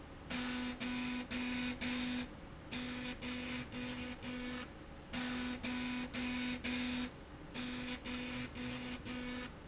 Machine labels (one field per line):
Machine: slide rail